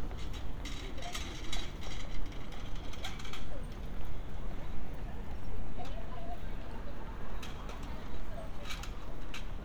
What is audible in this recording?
background noise